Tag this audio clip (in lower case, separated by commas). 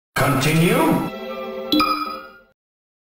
speech, music